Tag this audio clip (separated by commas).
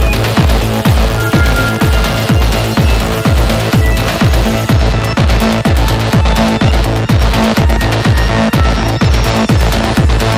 Rhythm and blues, Music